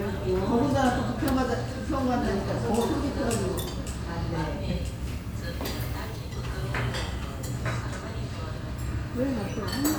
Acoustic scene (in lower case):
restaurant